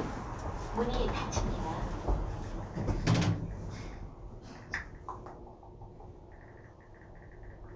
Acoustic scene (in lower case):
elevator